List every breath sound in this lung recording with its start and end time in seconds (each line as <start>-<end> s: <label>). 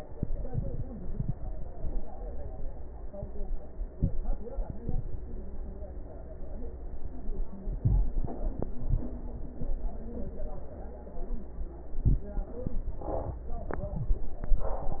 7.80-8.16 s: inhalation
11.94-12.29 s: inhalation